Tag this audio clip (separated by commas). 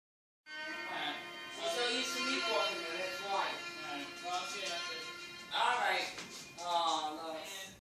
Music, Speech, Television